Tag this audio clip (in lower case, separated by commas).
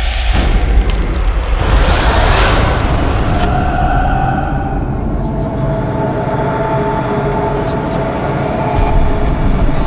music